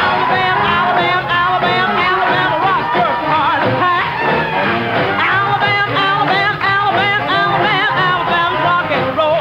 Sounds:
music
rock and roll

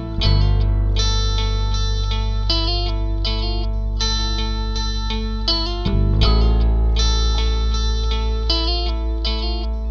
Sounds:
music

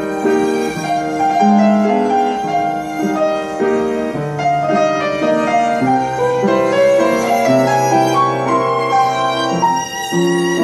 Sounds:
musical instrument
music

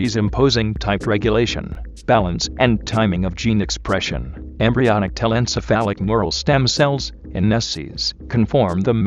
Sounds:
speech
music

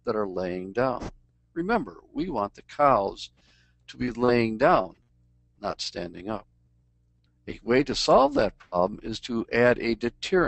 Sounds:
speech

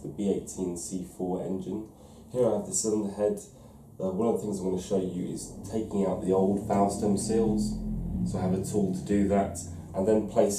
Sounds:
speech

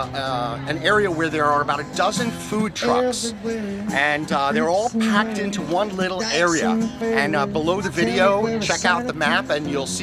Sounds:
music
speech

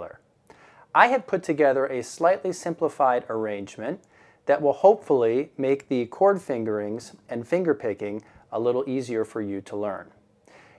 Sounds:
speech

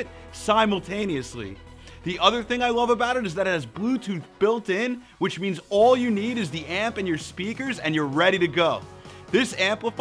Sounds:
music
speech

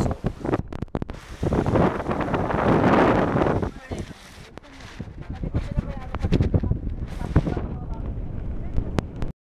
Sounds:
speech
boat

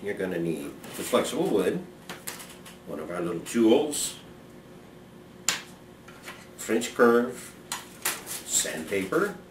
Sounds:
speech

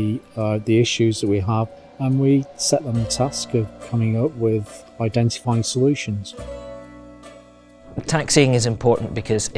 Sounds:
music
speech

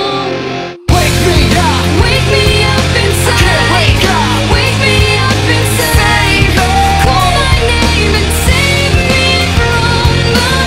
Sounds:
music

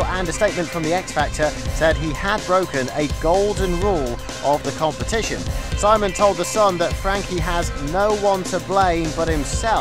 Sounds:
music
speech

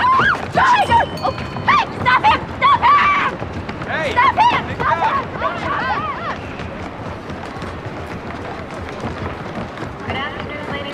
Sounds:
speech

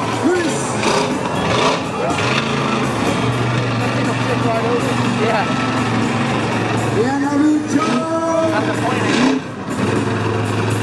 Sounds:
speech
music
vehicle
truck

